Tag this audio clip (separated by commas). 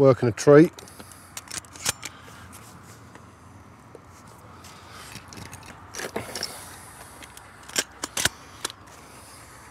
outside, rural or natural, Speech